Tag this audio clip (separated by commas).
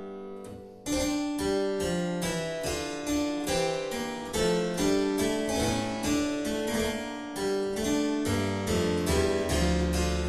playing harpsichord, Harpsichord, Keyboard (musical)